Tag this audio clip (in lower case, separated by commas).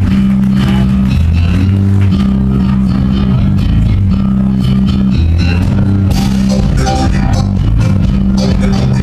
music, rhythm and blues